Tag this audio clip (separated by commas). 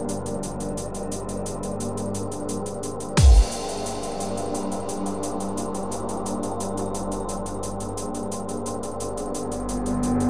Music